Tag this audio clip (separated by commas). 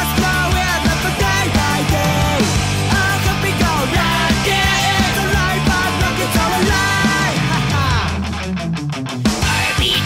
Music, Disco, Blues